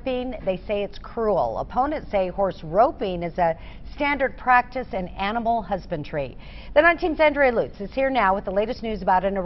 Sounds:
Speech

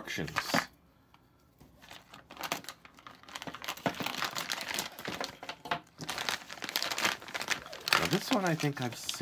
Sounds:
crinkling, Speech, inside a small room

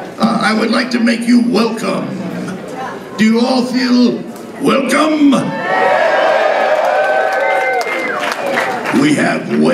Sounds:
Speech

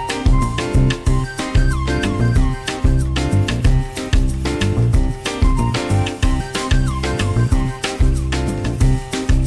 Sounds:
Music

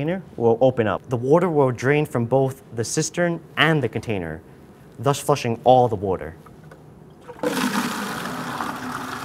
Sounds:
Water, Toilet flush

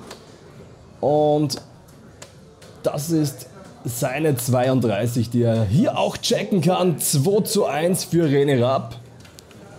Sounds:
playing darts

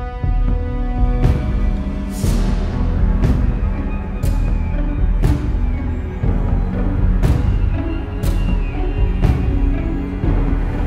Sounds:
Video game music, Music

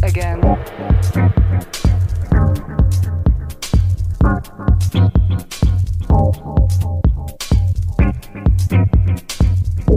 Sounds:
Music, Speech

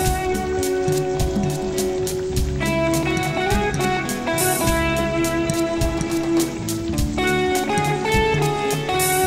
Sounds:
Music

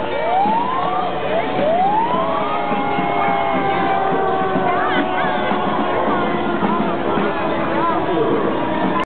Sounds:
Speech

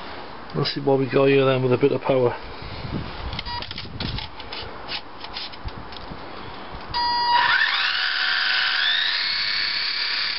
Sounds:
outside, urban or man-made, Speech

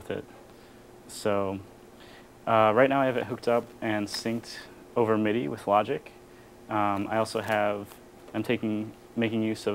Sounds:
Speech

